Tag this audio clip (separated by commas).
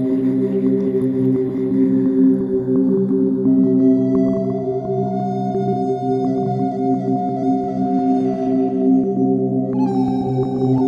New-age music, Music